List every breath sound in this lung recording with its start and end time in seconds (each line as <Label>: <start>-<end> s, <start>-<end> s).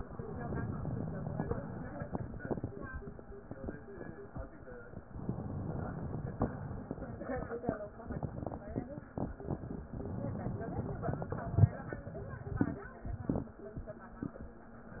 Inhalation: 0.10-1.60 s, 5.07-6.43 s, 9.98-11.37 s
Exhalation: 1.60-2.90 s, 6.43-7.69 s, 11.37-12.03 s
Crackles: 0.14-1.54 s, 1.60-2.90 s, 5.07-6.43 s, 6.47-7.72 s, 9.97-11.33 s, 11.41-12.09 s